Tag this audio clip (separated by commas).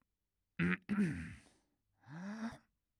Breathing, Respiratory sounds